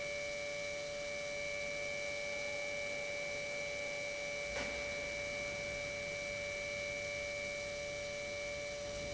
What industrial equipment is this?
pump